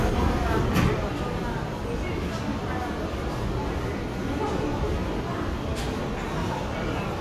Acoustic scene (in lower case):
subway station